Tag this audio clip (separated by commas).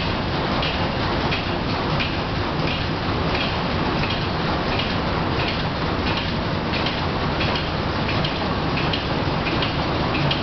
Engine, Heavy engine (low frequency)